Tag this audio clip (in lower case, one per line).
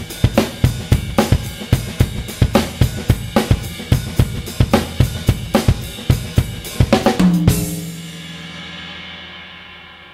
music